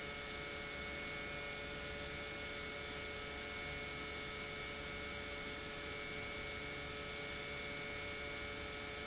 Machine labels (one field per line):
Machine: pump